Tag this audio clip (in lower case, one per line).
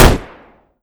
gunshot
explosion